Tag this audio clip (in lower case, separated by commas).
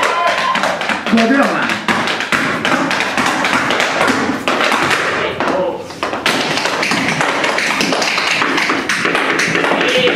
tap, speech